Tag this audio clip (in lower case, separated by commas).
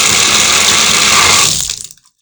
water, domestic sounds, sink (filling or washing)